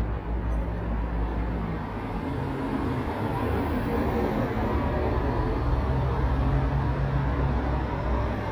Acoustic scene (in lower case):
street